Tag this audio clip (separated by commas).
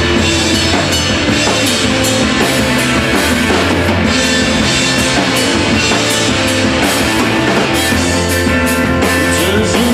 Music